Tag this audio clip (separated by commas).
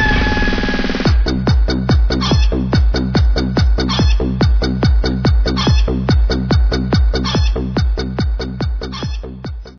rooster, Fowl